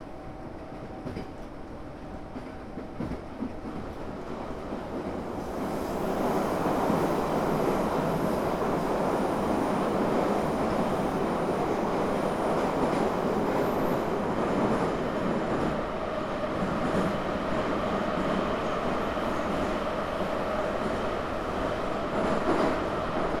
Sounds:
Rail transport, metro, Vehicle

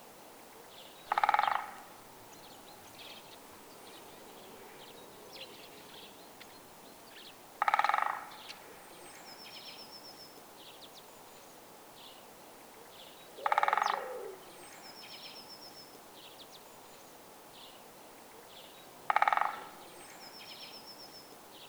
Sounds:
Bird vocalization, Bird, Animal, Wild animals

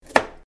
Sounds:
Domestic sounds

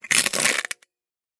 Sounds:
Crushing

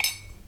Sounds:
dishes, pots and pans, Cutlery, home sounds

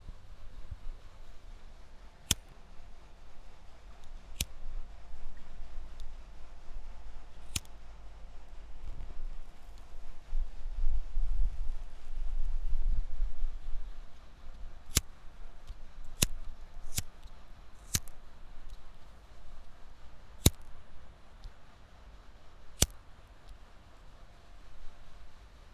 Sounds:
Fire

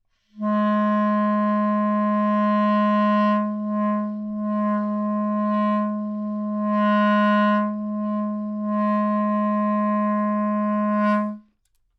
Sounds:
Musical instrument, Music, Wind instrument

